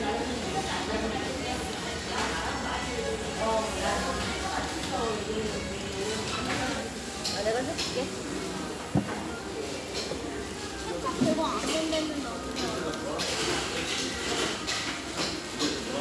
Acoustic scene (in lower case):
restaurant